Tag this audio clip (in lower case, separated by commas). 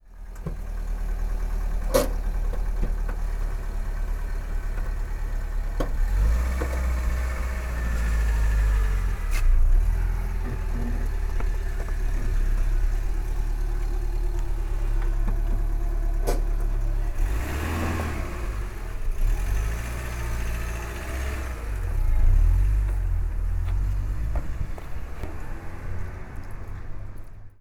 vehicle, motor vehicle (road), car